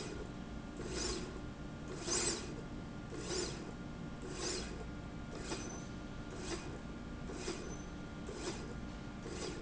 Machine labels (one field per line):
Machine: slide rail